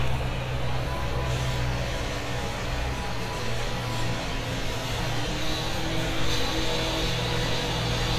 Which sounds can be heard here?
unidentified powered saw